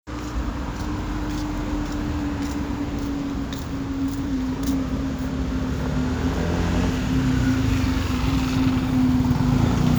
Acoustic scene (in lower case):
street